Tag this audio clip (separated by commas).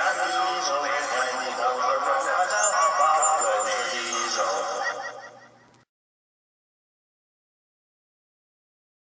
Speech